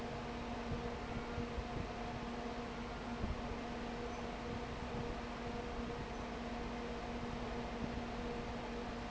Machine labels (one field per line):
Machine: fan